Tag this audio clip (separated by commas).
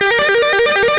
Music, Electric guitar, Musical instrument, Guitar, Plucked string instrument